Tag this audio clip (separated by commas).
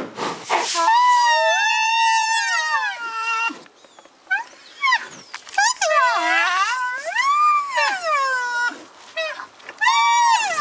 people screaming